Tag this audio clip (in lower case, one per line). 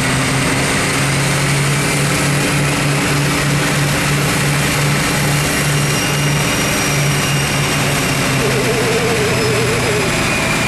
vehicle
idling
heavy engine (low frequency)
accelerating
engine